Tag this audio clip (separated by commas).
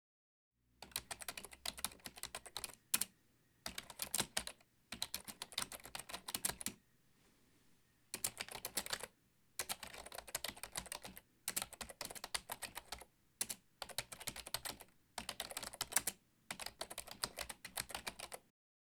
home sounds, Typing